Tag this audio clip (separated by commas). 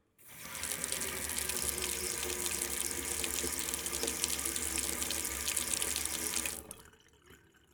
Sink (filling or washing), Domestic sounds, Water tap